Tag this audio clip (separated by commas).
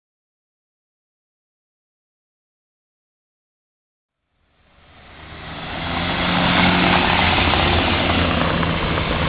Motor vehicle (road), Vehicle